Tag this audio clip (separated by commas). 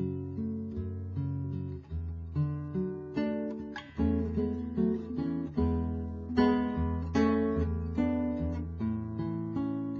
Musical instrument, Music, Acoustic guitar, Plucked string instrument, Guitar